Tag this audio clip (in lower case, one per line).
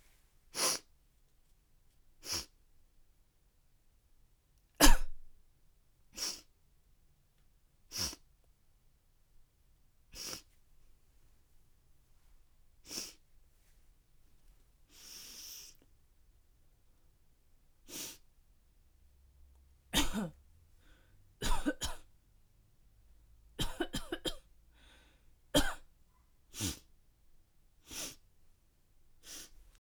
cough
respiratory sounds